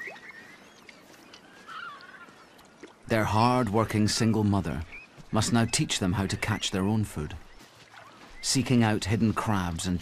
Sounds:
otter growling

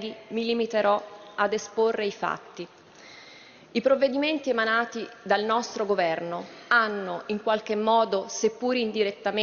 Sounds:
Speech

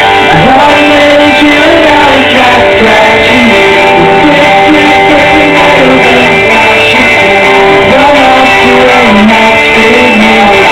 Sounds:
Music

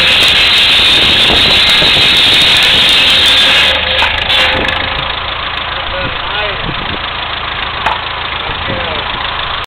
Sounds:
Speech

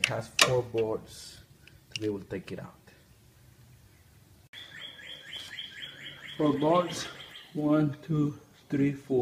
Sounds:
Bird

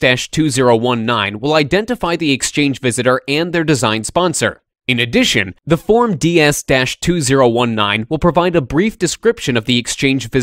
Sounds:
Speech

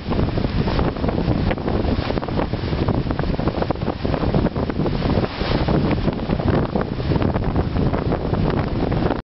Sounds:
Waves, Ocean

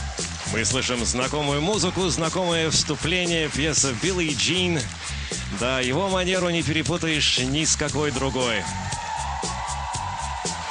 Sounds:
Music, Speech

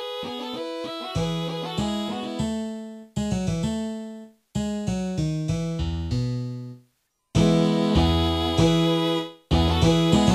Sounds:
Musical instrument, Music

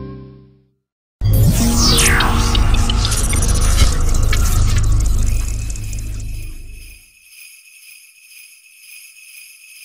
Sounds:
Jingle bell

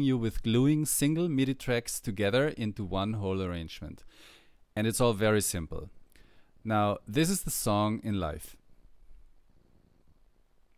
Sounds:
Speech

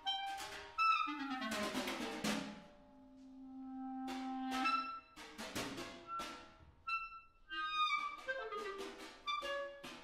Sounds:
Clarinet, playing clarinet

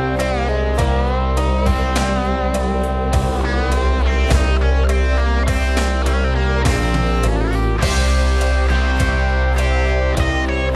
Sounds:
Plucked string instrument, Guitar, Acoustic guitar, Music, Musical instrument

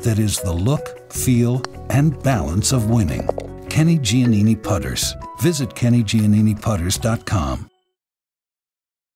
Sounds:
Music, Speech

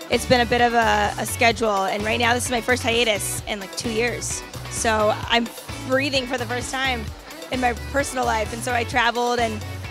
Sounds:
Music, Speech

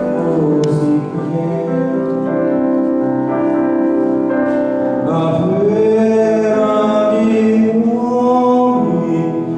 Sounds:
Vocal music, Music

